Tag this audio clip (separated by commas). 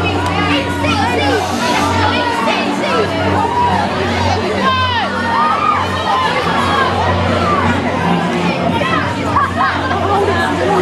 Music, Speech